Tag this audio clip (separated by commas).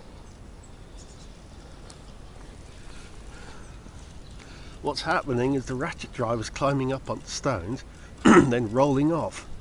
Speech